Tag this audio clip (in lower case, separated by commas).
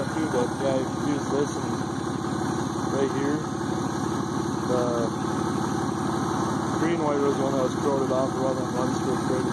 idling, vehicle, engine, car, speech